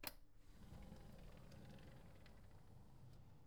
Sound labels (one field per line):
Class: window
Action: opening